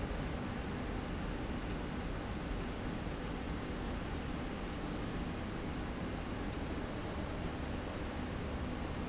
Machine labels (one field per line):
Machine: slide rail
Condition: normal